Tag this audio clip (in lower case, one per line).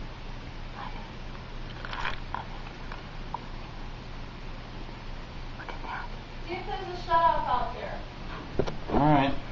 speech